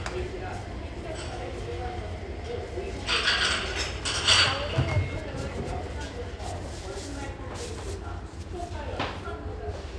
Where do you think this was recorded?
in a restaurant